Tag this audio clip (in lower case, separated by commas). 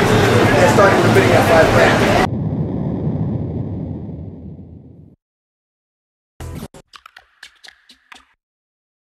speech